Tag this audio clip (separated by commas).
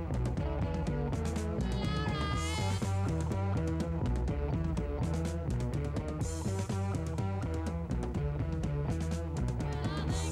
Music